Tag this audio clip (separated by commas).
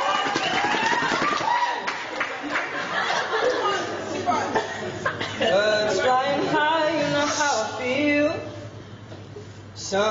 Male singing, Speech